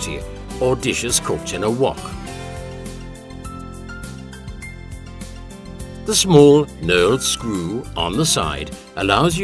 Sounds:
Speech, Music

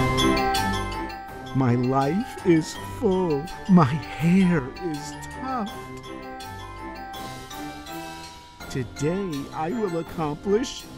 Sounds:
Music, Speech

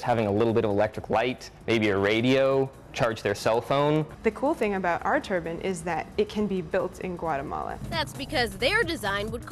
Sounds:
Music, Speech

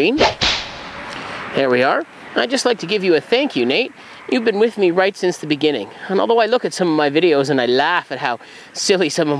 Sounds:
outside, rural or natural, Speech

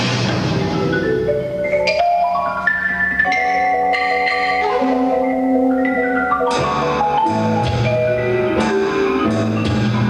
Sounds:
Tubular bells, Music

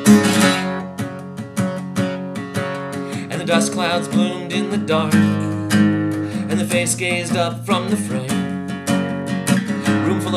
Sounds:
Strum, Acoustic guitar, Music

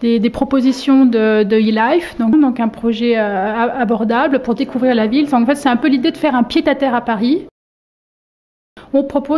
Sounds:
Speech

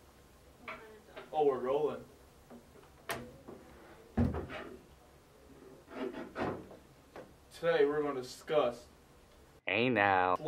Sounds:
Speech

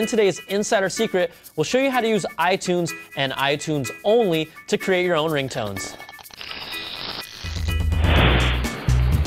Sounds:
Speech, Music

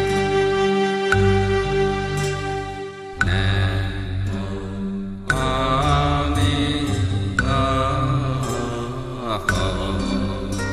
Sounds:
Music, Chant, Mantra

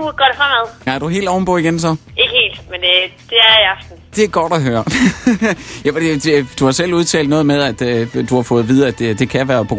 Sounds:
Music, Speech

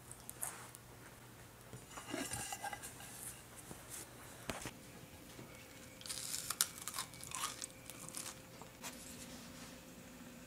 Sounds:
mastication

